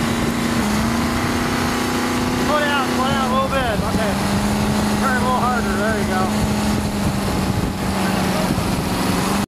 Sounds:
Speech

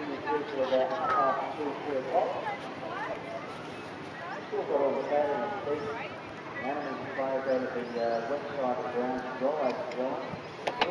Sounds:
Speech

